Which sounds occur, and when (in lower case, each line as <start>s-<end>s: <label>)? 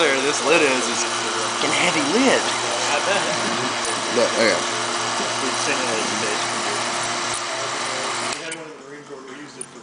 0.0s-1.0s: male speech
0.0s-8.3s: power tool
0.0s-9.8s: conversation
1.5s-2.5s: male speech
2.8s-3.2s: male speech
4.0s-4.6s: male speech
5.1s-6.4s: male speech
7.4s-8.0s: male speech
8.2s-9.8s: male speech
8.3s-8.4s: clicking
8.3s-9.8s: mechanisms
8.5s-8.6s: generic impact sounds